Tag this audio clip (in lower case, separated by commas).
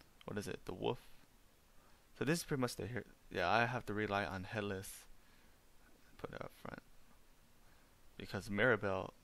speech